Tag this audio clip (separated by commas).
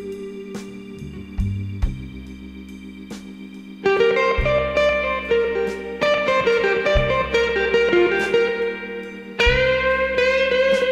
Music, outside, rural or natural